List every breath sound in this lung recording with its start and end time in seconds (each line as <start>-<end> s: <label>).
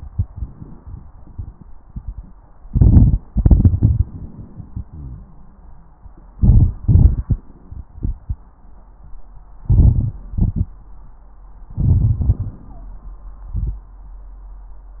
2.63-3.22 s: inhalation
2.63-3.22 s: crackles
3.29-5.31 s: exhalation
3.29-5.31 s: crackles
6.33-6.81 s: inhalation
6.33-6.81 s: crackles
6.84-7.43 s: exhalation
6.84-7.43 s: crackles
9.63-10.22 s: inhalation
9.63-10.22 s: crackles
10.30-10.89 s: exhalation
10.30-10.89 s: crackles
11.74-12.20 s: inhalation
11.74-12.20 s: crackles
12.23-13.02 s: exhalation
12.23-13.02 s: crackles
12.65-13.02 s: wheeze